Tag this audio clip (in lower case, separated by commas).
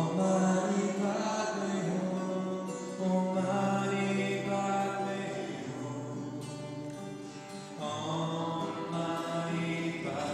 mantra, music, singing, guitar